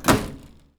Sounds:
door
home sounds
microwave oven
slam

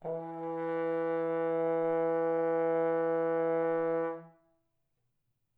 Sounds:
brass instrument
music
musical instrument

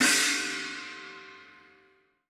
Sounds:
cymbal
musical instrument
music
percussion
crash cymbal

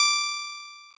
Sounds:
guitar
music
plucked string instrument
musical instrument

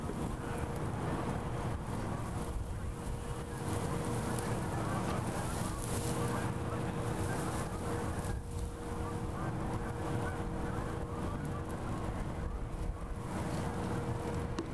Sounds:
wind

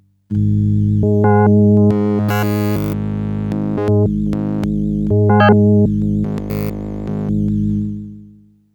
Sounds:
music
musical instrument
keyboard (musical)

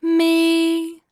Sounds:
female singing
singing
human voice

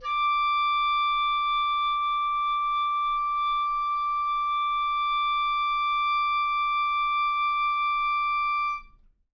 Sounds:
music
woodwind instrument
musical instrument

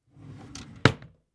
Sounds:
drawer open or close
domestic sounds

